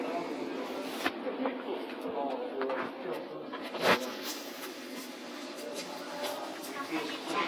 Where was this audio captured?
in a crowded indoor space